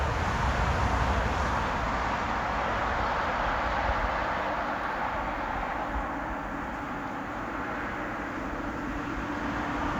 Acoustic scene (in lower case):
street